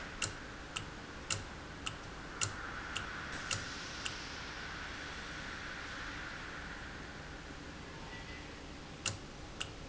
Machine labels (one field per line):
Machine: valve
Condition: normal